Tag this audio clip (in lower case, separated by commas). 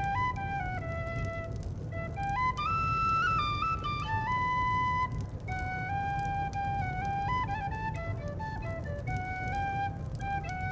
folk music, flute, music